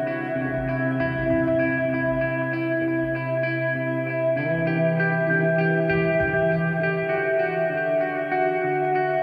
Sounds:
music

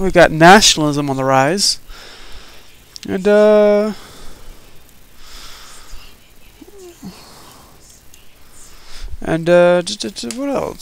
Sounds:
speech

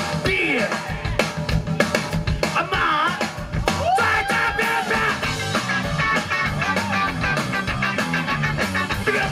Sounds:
music, speech

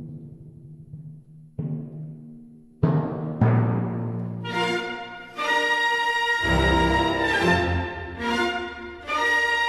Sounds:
timpani

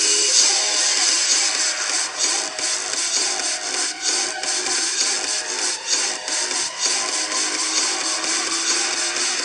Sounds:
music

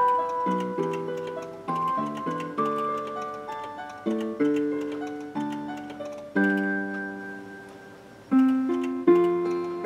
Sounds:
tick-tock, tick, music

